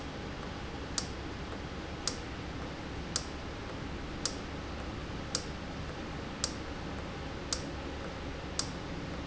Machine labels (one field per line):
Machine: valve